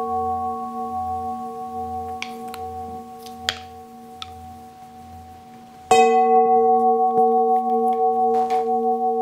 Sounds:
playing tuning fork

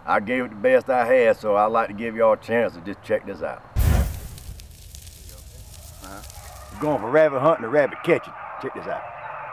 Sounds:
Bow-wow, Speech, Yip, pets

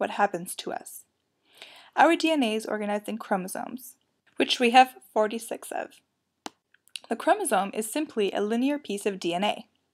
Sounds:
Speech

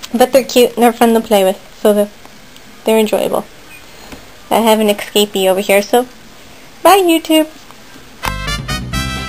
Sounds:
Rodents

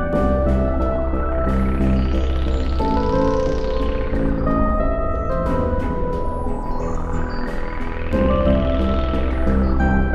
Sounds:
Soundtrack music, Music

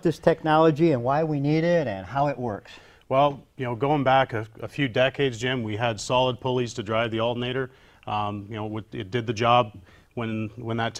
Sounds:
Speech

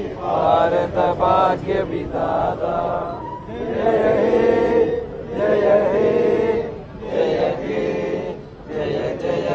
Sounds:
Male singing

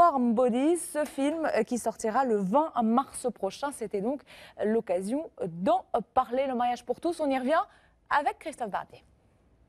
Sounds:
Speech

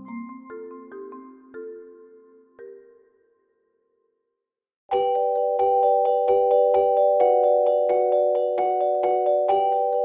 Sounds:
Glockenspiel, Mallet percussion, xylophone

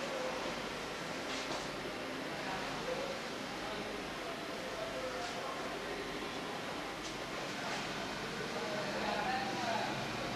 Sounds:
Speech

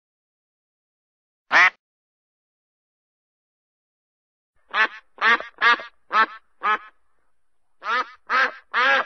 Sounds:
duck quacking

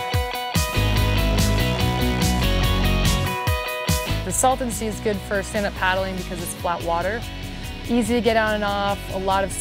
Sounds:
Music, Speech

